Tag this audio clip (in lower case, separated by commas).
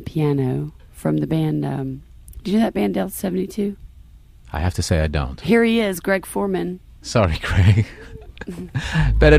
speech